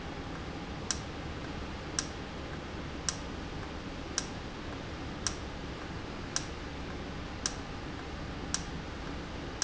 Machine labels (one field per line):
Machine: valve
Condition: normal